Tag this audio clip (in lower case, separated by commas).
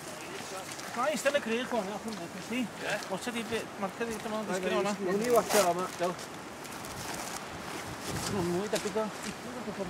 speech